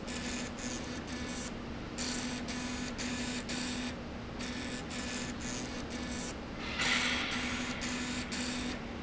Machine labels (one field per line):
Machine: slide rail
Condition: abnormal